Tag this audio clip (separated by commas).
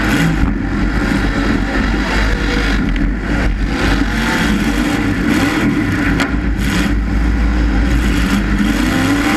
Vehicle, Car, Motor vehicle (road)